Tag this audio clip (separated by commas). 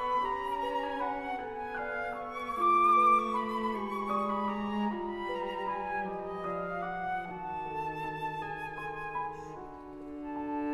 Music, Musical instrument